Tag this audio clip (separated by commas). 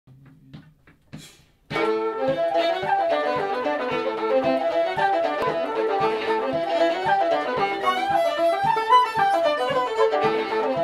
Banjo, Music, fiddle, Musical instrument, Bowed string instrument, Guitar